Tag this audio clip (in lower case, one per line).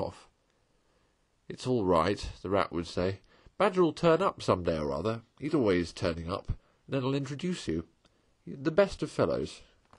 speech